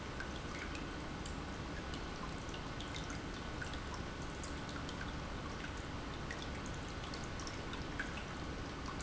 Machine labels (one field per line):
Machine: pump